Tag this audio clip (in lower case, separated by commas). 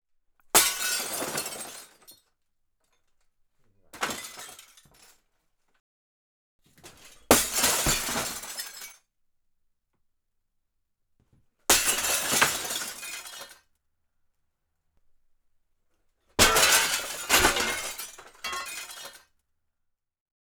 glass, shatter